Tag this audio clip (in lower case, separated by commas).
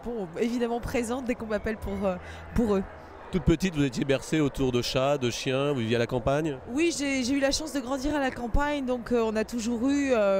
speech